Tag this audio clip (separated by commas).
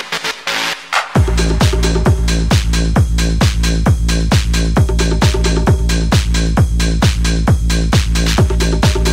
Techno, Electronic music, Music, Trance music